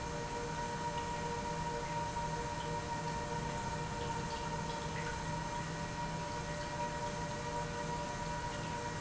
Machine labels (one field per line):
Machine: pump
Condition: normal